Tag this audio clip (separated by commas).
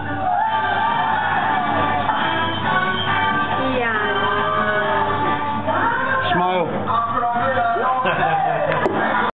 Music, Speech